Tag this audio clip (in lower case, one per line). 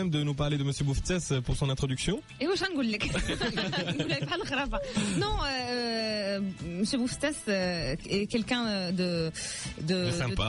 speech
music